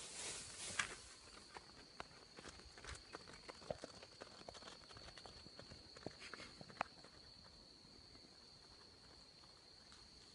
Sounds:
walk

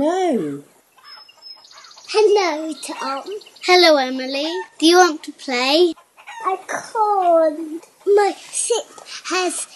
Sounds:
tweet
child speech
bird vocalization
inside a small room
speech

